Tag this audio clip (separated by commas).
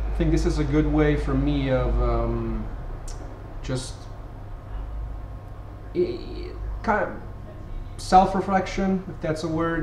Speech